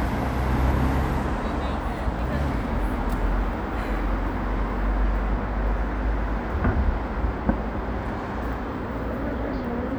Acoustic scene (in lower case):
street